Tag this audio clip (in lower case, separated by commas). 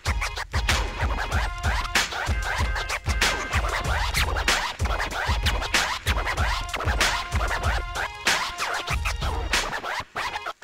music, scratching (performance technique)